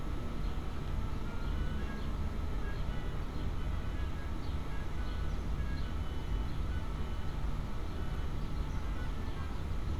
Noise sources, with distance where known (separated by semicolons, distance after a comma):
music from a fixed source